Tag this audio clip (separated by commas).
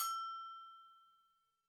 Bell